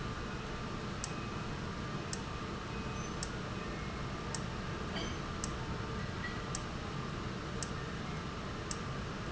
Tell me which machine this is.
valve